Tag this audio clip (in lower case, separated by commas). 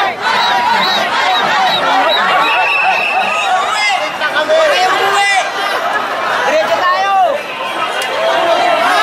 chatter, music, speech